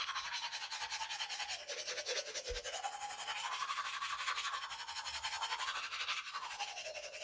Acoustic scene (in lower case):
restroom